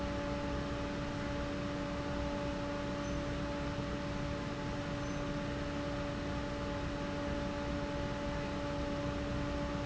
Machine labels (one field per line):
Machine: fan